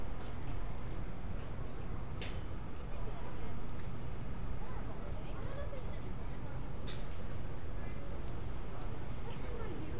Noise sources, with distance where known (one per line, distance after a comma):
engine of unclear size, far
person or small group talking, far